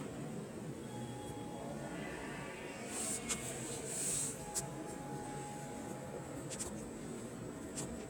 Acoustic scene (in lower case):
subway station